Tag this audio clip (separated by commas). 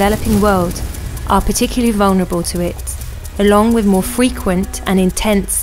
Speech